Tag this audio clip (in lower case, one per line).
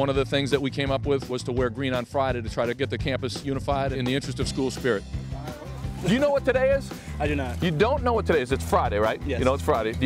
music
speech